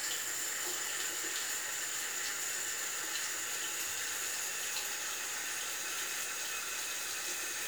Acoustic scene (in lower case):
restroom